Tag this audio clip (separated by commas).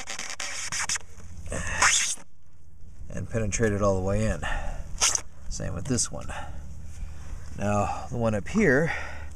Speech